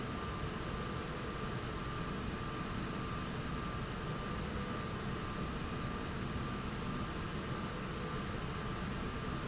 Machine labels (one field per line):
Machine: slide rail